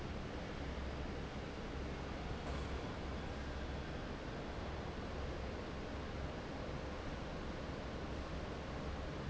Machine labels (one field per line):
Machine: fan